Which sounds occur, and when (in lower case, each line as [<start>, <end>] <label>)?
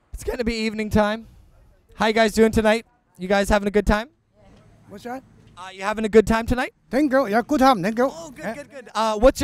[0.00, 9.43] background noise
[0.10, 1.18] male speech
[0.11, 9.43] conversation
[1.51, 1.78] male speech
[1.93, 2.83] male speech
[2.87, 3.16] female speech
[3.14, 4.04] male speech
[4.30, 4.74] female speech
[4.44, 4.60] footsteps
[4.82, 5.17] male speech
[5.38, 5.49] footsteps
[5.56, 6.69] male speech
[6.92, 9.43] male speech